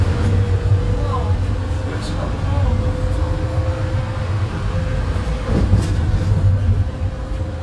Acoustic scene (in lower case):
bus